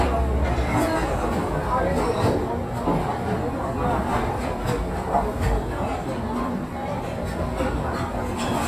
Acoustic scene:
restaurant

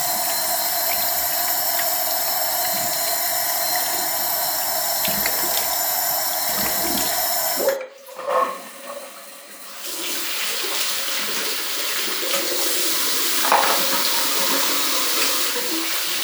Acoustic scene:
restroom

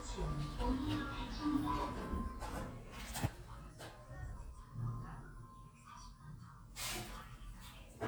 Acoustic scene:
elevator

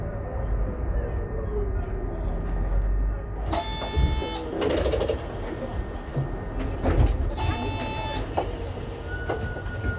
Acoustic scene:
bus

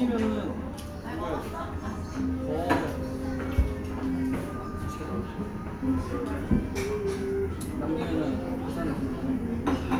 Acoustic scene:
restaurant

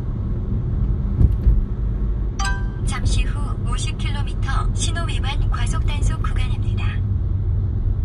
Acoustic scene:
car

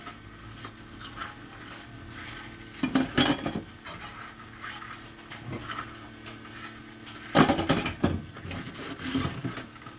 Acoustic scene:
kitchen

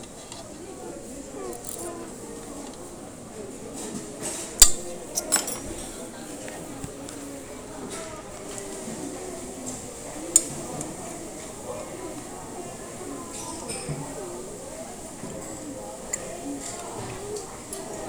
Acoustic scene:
restaurant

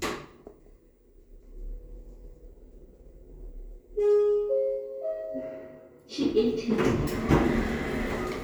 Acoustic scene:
elevator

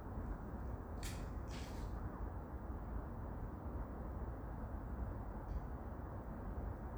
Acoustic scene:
park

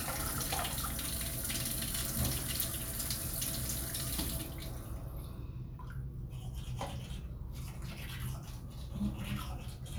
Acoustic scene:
restroom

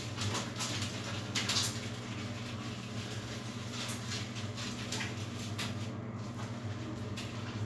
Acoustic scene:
restroom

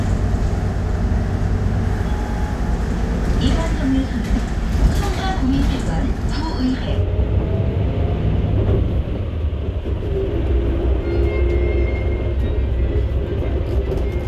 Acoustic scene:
bus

